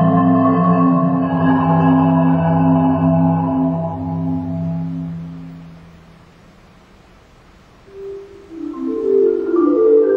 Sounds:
Music, Vibraphone, Musical instrument, xylophone

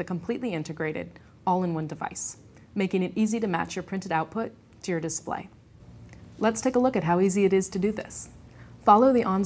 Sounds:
Speech

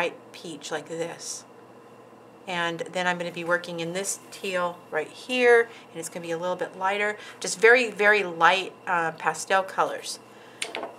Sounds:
Speech

